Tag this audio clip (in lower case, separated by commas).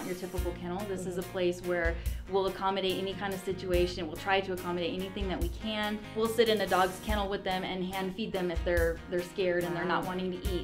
speech, music